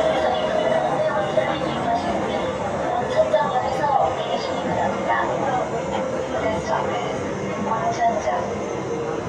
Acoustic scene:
subway train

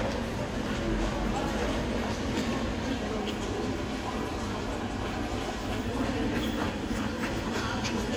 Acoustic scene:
crowded indoor space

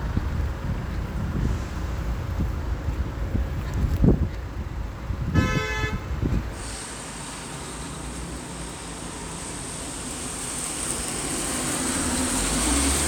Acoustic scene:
street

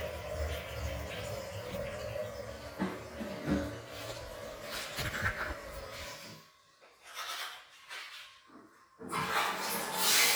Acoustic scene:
restroom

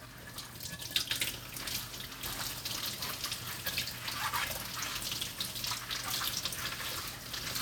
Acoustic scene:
kitchen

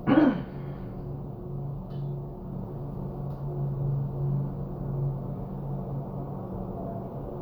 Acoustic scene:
elevator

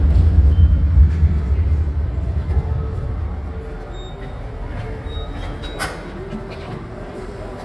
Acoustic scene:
subway station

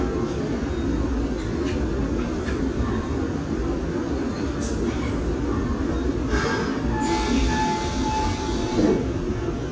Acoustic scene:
subway train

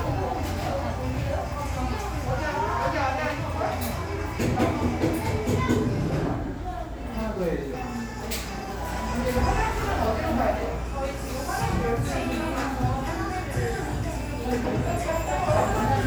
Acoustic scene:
crowded indoor space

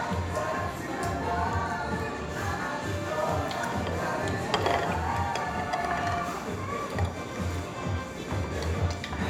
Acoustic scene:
restaurant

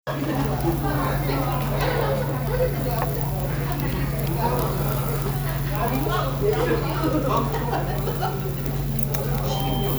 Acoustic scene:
restaurant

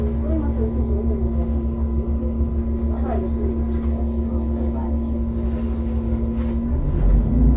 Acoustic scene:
bus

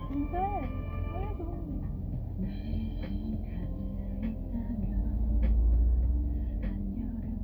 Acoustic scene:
car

